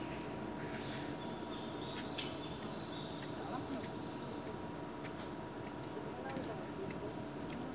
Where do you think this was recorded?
in a park